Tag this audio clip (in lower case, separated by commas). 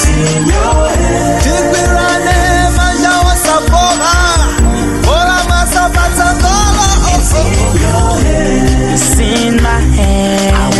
music, singing